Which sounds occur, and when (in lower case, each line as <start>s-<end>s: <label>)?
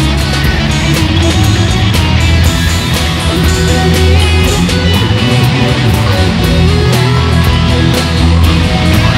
0.0s-9.1s: music